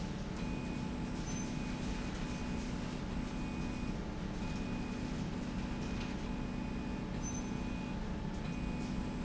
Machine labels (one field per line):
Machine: slide rail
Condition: normal